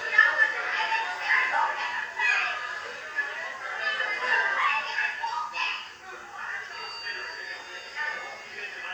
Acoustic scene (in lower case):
crowded indoor space